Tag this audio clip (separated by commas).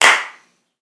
Hands, Clapping